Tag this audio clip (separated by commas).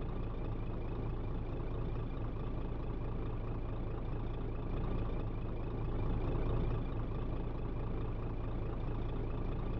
Vehicle